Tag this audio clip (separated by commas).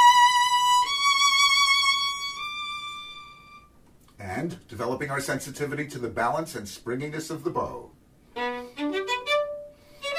Musical instrument, Music, Speech, fiddle